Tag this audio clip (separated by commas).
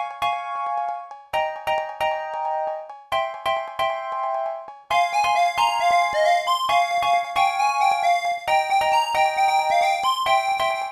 Music